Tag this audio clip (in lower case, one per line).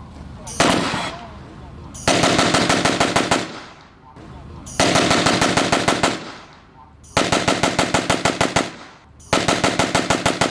machine gun shooting